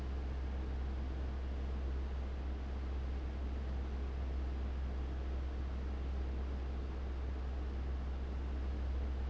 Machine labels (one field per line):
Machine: fan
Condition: abnormal